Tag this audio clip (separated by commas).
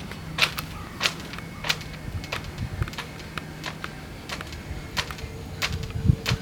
Wind